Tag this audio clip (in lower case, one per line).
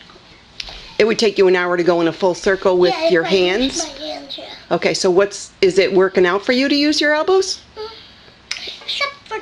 inside a large room or hall
speech